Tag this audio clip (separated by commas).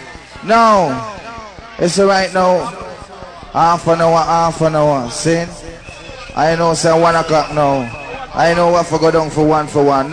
Speech